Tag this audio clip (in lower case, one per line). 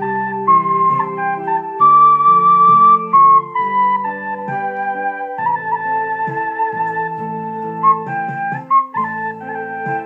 music
musical instrument
woodwind instrument
flute
playing flute